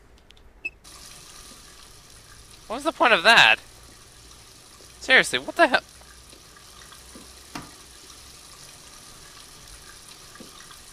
Water running from a faucet while a man speaks